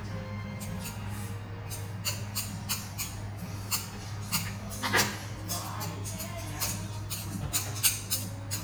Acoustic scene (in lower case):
restaurant